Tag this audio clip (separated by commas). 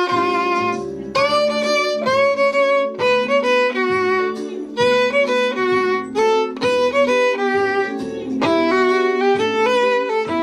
Music